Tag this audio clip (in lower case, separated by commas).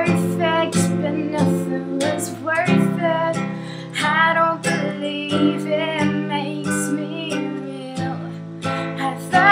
music